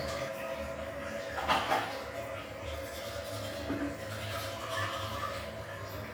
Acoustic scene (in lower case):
restroom